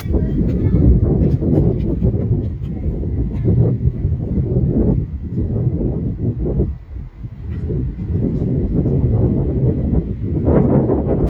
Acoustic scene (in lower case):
residential area